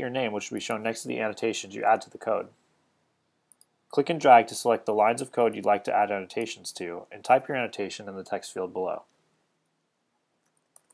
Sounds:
speech

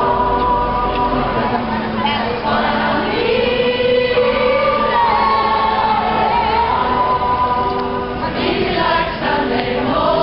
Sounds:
speech, crowd, singing, music, choir

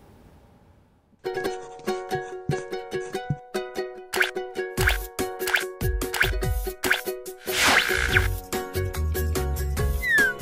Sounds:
music

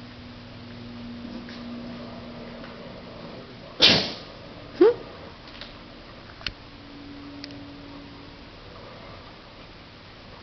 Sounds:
dog, pets, animal

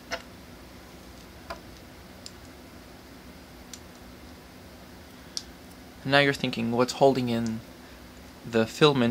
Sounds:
speech

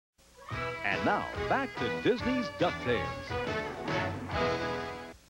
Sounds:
music, speech

